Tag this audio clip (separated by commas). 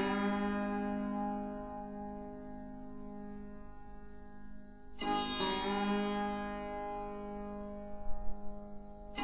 Sitar, Music